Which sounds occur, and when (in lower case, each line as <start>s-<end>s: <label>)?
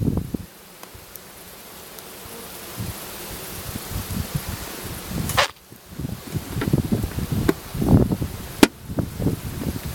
0.0s-0.5s: wind noise (microphone)
0.0s-9.9s: bee or wasp
0.0s-9.9s: wind
0.7s-0.9s: tick
1.1s-1.2s: tick
1.9s-2.0s: tick
2.7s-2.9s: wind noise (microphone)
3.3s-3.7s: wind noise (microphone)
3.9s-4.6s: wind noise (microphone)
4.8s-5.4s: wind noise (microphone)
5.3s-5.6s: generic impact sounds
5.7s-7.6s: wind noise (microphone)
6.6s-6.7s: tick
7.4s-7.6s: tick
7.7s-8.4s: wind noise (microphone)
8.6s-8.7s: tick
8.8s-9.9s: wind noise (microphone)